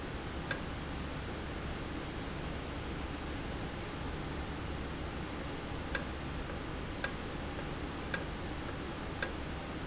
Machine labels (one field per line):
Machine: valve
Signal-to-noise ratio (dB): -6 dB